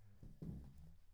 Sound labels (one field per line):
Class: furniture moving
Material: wooden